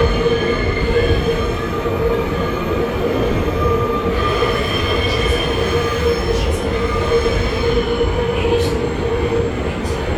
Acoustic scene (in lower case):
subway train